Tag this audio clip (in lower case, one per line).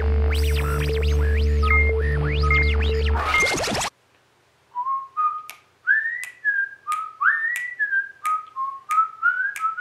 people whistling